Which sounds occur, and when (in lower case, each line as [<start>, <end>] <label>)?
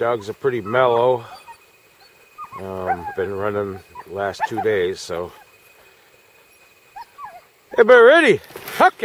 [0.00, 1.26] man speaking
[0.00, 9.04] background noise
[0.14, 0.39] whimper (dog)
[0.61, 1.60] whimper (dog)
[1.91, 2.12] whimper (dog)
[2.35, 5.45] whimper (dog)
[2.42, 3.84] man speaking
[4.05, 5.30] man speaking
[6.46, 7.51] whimper (dog)
[7.60, 8.42] man speaking
[7.65, 7.89] whimper (dog)
[8.38, 9.04] generic impact sounds
[8.71, 9.04] man speaking